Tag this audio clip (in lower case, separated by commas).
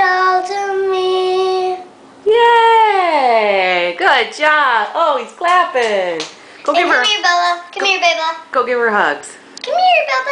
speech, child singing